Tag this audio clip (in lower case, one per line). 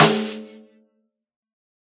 musical instrument
percussion
snare drum
music
drum